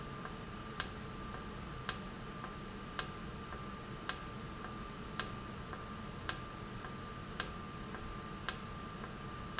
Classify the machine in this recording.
valve